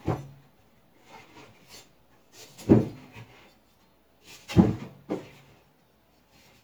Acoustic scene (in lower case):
kitchen